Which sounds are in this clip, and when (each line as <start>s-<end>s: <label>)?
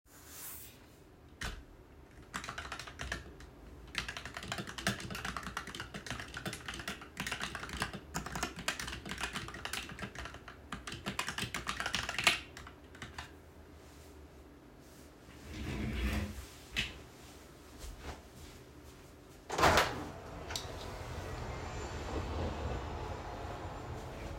1.5s-1.6s: keyboard typing
2.3s-13.3s: keyboard typing
17.8s-19.4s: footsteps
19.5s-20.4s: window